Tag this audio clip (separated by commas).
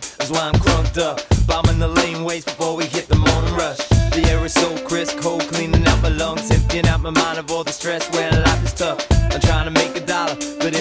Music